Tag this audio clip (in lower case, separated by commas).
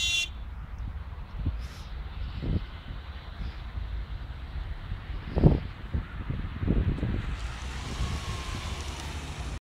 vehicle, car passing by, car